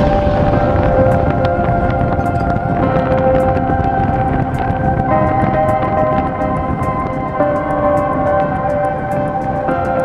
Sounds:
missile launch

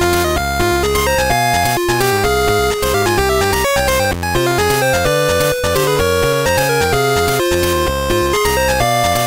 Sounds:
Music

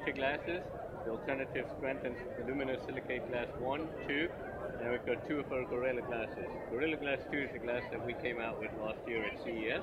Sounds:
Speech

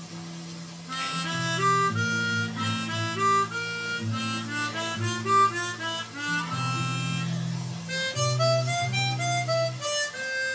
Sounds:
Wind instrument, Harmonica

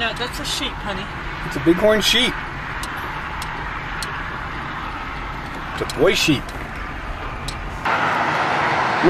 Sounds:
Speech

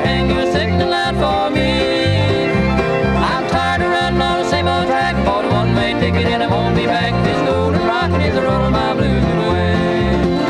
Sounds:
Music, Musical instrument, Song, Singing, Country

